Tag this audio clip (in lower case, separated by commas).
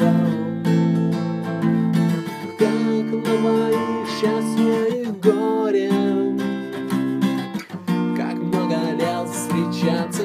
musical instrument, guitar, music